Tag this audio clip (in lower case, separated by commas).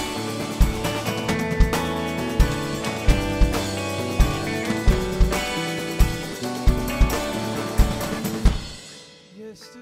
music